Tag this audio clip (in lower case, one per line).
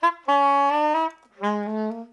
musical instrument
woodwind instrument
music